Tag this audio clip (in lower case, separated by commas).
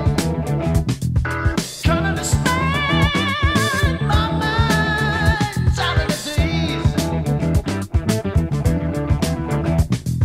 music